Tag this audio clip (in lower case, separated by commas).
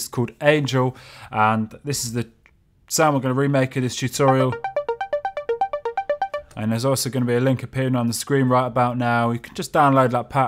music, speech, synthesizer